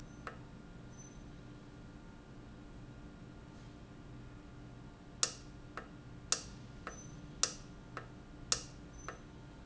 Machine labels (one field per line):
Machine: valve